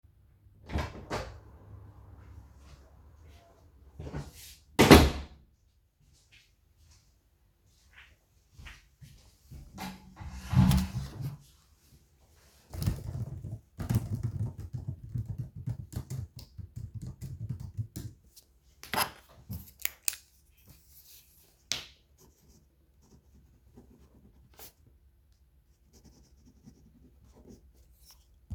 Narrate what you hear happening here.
I opened and the closed my door, pulled a chair, sat down, typed a bit on my laptop and wrote on a paper using my pen.